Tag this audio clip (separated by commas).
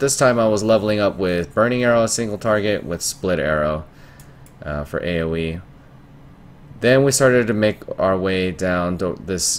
Speech